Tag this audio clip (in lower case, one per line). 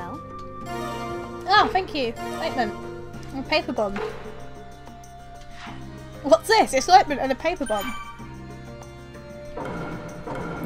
music
speech